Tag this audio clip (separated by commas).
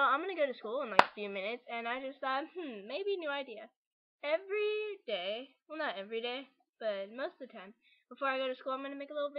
Speech